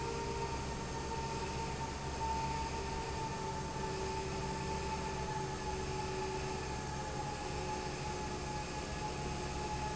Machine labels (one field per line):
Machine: fan